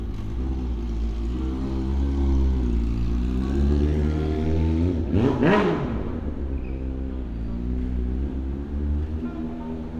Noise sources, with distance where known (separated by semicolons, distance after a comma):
engine of unclear size, near